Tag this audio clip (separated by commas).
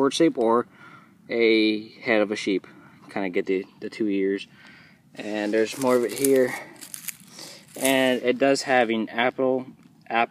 Speech